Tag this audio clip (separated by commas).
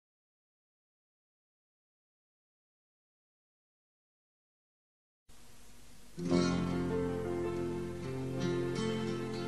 Music, Silence